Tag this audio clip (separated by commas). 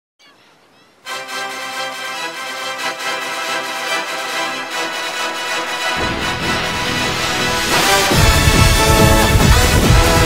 Music